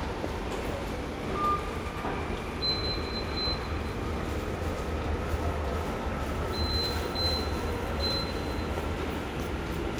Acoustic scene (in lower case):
subway station